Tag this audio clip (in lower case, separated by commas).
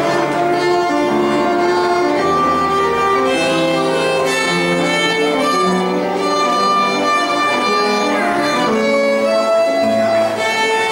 bowed string instrument, violin